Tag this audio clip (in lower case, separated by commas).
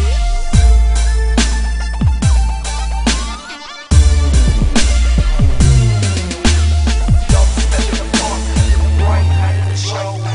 music, dubstep, electronic music